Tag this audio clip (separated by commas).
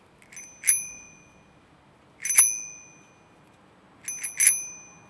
Bicycle, Bell, Alarm, Bicycle bell, Vehicle